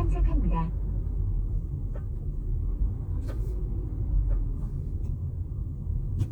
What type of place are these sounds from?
car